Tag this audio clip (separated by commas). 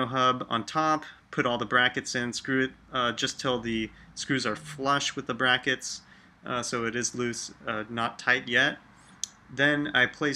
Speech